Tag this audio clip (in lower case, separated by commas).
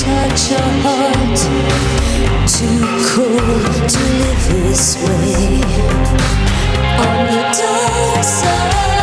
music